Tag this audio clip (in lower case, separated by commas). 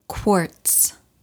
speech, woman speaking, human voice